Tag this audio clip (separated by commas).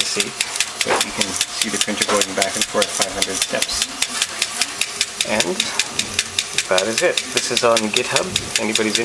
Printer, Speech